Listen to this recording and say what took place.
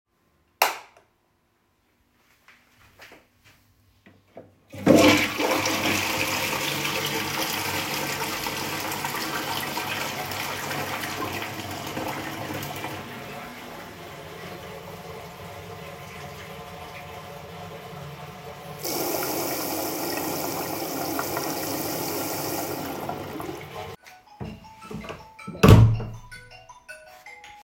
In the bathroom, I turn the lights on using the switch, flushed the toilet, turned on the running water to wash my hands. The phone rang in the background